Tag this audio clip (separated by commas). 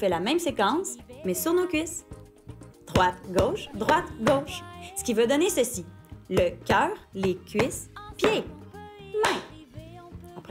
Music, Speech